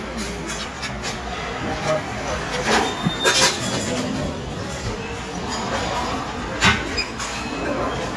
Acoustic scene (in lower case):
restaurant